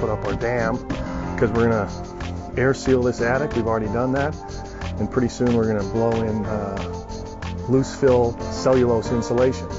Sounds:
Music, Speech

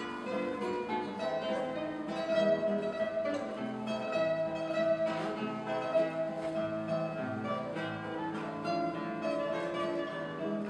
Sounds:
Musical instrument, Plucked string instrument, Music, Guitar

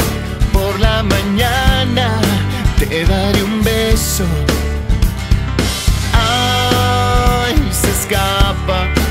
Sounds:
Music

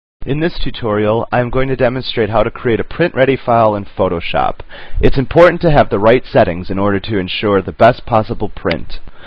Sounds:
Speech

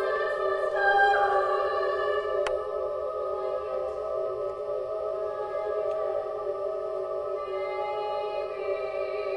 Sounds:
Choir, Music

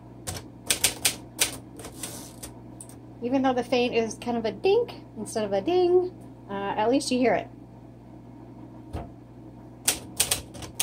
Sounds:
typing on typewriter

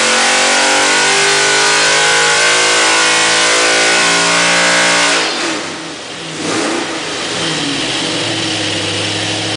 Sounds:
Idling, Engine

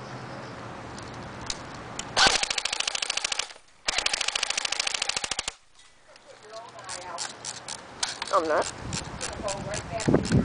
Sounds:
Speech

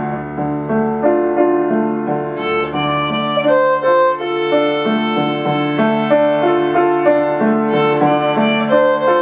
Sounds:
Music, Musical instrument, Violin

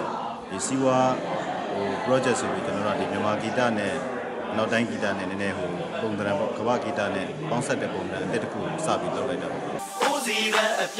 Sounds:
Music, Speech

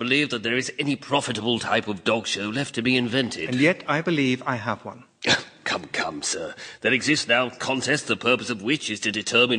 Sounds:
Speech

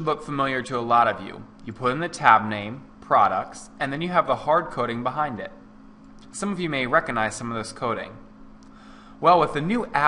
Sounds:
Speech

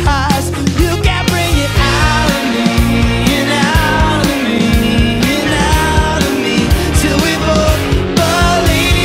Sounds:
Music

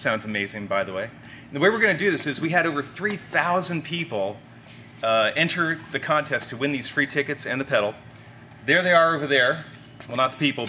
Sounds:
Speech

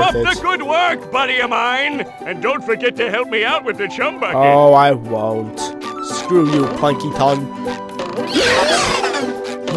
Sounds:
Music, Speech

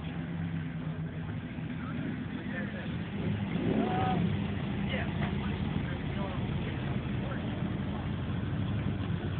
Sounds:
Speech

